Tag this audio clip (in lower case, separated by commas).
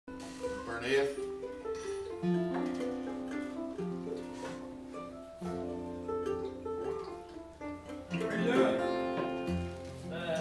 speech, plucked string instrument, music, guitar, musical instrument